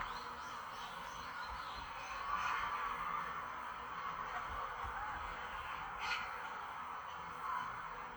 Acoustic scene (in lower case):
park